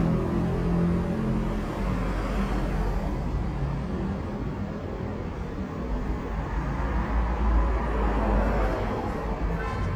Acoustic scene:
street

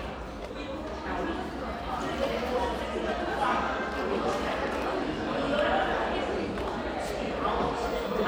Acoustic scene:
crowded indoor space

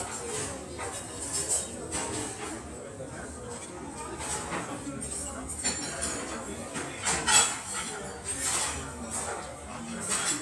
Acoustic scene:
restaurant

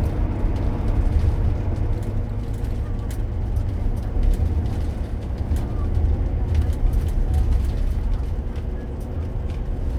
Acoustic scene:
bus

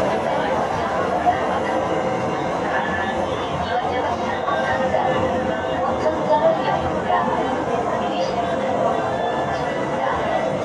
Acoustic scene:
subway train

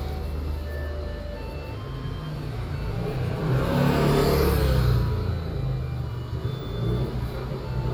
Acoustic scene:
residential area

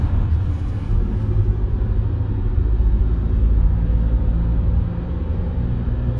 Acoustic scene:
car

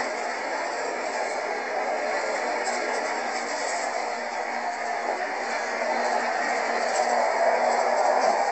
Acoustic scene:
bus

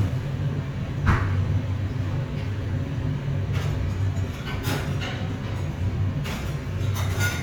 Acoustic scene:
restaurant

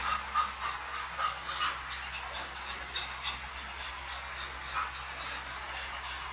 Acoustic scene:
restroom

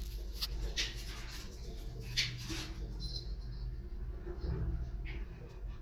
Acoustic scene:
elevator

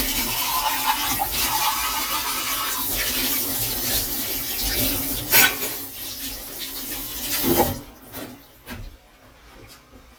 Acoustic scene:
kitchen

